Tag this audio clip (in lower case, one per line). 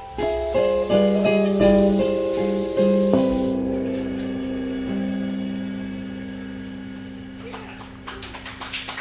music
guitar
musical instrument